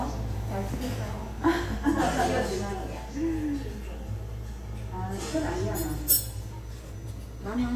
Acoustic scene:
restaurant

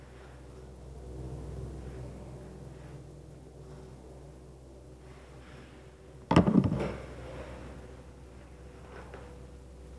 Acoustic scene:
elevator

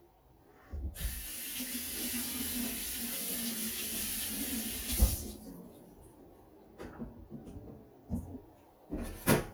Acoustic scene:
kitchen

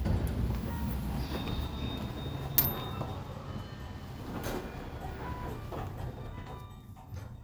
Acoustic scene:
elevator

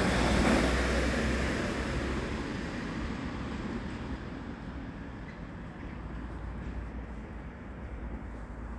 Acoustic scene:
residential area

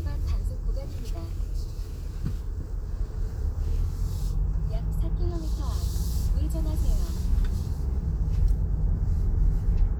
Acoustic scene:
car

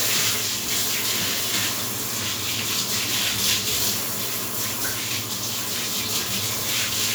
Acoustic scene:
restroom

